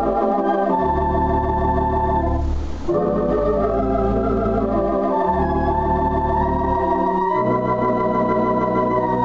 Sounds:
organ, piano, musical instrument, keyboard (musical), music

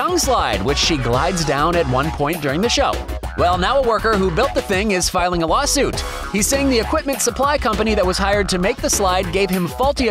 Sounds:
music, speech

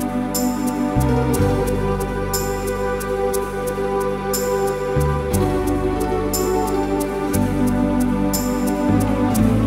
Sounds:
playing electronic organ

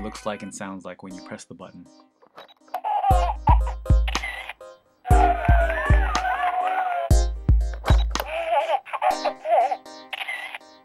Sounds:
speech, music

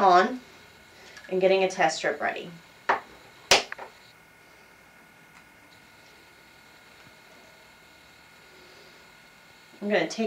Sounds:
speech

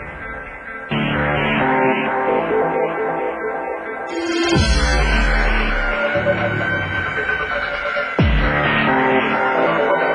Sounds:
music

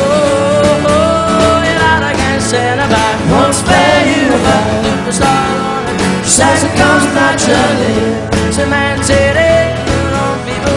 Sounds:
music, singing

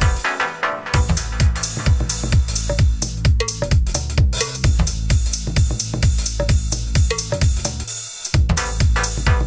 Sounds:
music

